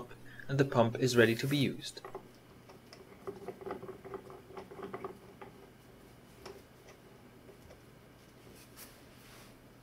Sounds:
speech

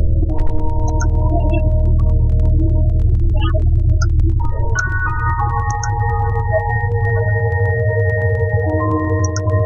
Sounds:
mallet percussion
marimba
glockenspiel

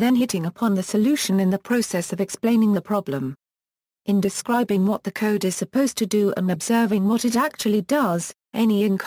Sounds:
speech

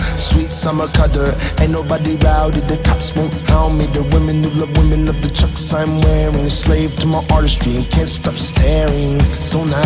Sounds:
new-age music
music

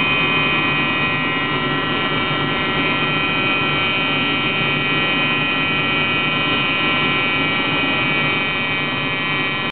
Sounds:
buzzer

